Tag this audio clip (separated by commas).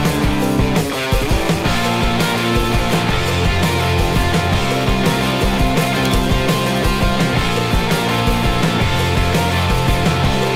Music